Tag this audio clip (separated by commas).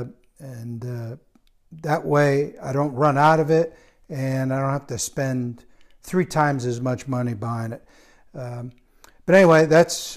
Speech